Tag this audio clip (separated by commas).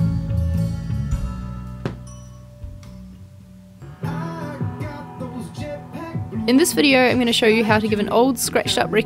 Music, Speech